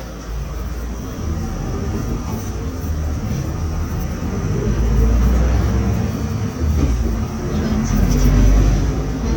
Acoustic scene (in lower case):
bus